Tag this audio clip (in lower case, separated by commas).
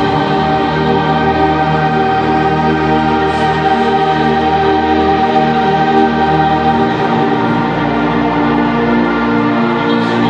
music, theme music